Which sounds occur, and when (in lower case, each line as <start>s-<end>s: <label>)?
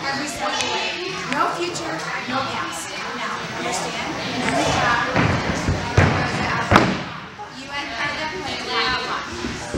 0.0s-9.7s: conversation
0.0s-9.7s: speech babble
0.0s-0.9s: female speech
0.5s-0.7s: generic impact sounds
1.2s-1.9s: female speech
1.2s-1.4s: generic impact sounds
2.1s-2.8s: female speech
3.0s-4.1s: female speech
3.5s-3.9s: man speaking
4.4s-5.1s: female speech
5.1s-6.9s: music
5.5s-6.7s: female speech
7.7s-9.3s: female speech
9.3s-9.7s: man speaking
9.3s-9.7s: thud